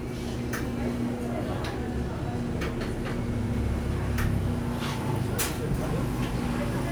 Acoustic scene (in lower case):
cafe